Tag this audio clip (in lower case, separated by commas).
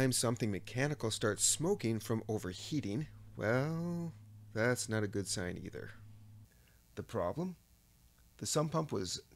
speech